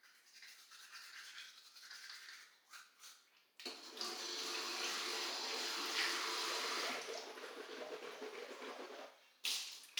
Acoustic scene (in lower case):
restroom